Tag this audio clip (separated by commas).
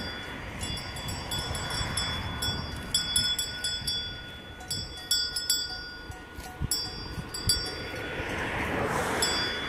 bovinae cowbell